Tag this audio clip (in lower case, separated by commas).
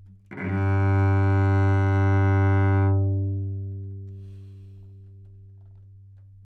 music, musical instrument, bowed string instrument